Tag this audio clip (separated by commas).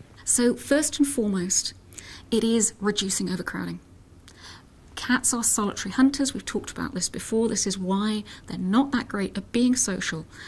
Speech